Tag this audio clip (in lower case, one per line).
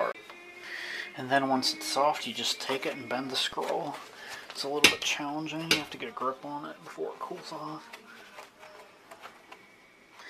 speech